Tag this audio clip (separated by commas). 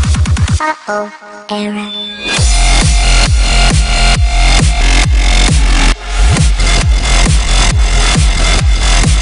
Dubstep, Electronic music, Music